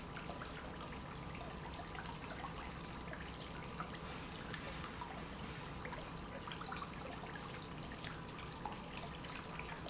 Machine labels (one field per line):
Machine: pump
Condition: normal